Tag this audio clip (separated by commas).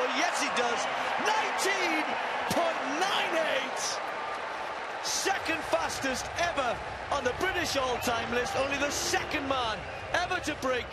outside, urban or man-made, Speech